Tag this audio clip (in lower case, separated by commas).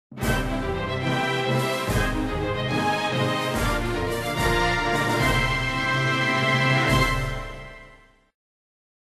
theme music, music